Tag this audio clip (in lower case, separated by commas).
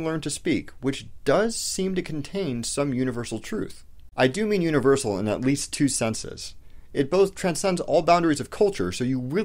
speech